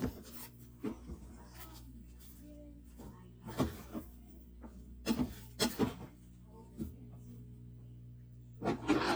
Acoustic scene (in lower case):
kitchen